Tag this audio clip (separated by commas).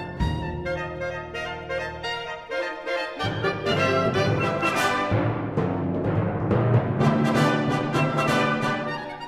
Music, Timpani, Saxophone